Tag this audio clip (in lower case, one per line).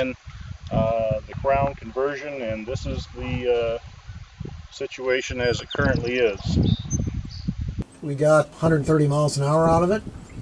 speech